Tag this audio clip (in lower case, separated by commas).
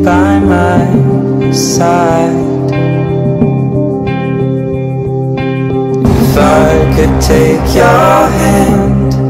harmonic, music